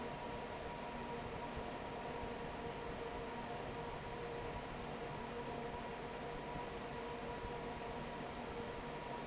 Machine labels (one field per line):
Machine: fan